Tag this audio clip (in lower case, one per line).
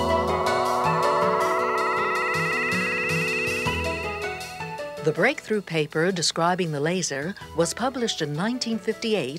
music
speech